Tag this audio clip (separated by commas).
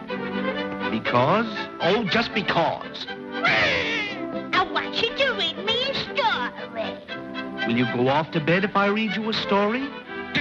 Music, Speech